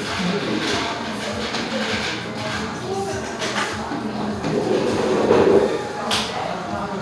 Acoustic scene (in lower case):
cafe